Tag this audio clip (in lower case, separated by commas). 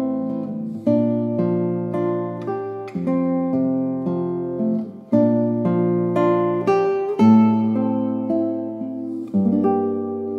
music, lullaby